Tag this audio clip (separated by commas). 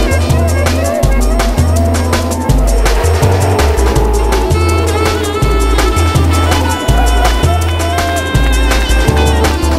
Vehicle, Music, Speech